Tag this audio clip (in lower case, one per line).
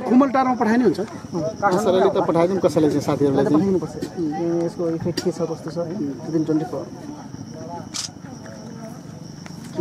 speech